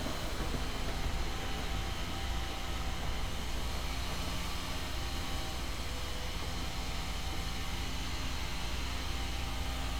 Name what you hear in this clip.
unidentified powered saw